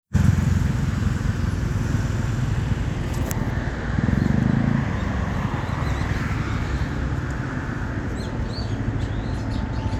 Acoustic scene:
residential area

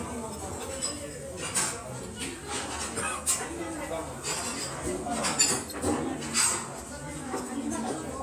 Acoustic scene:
restaurant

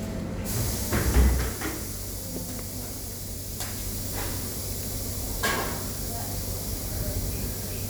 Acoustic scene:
subway station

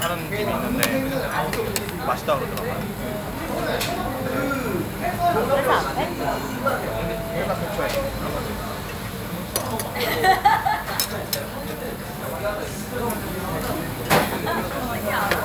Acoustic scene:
restaurant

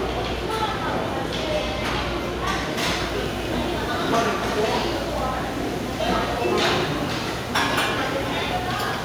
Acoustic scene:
restaurant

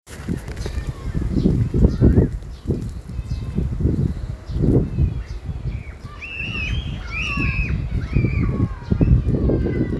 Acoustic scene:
residential area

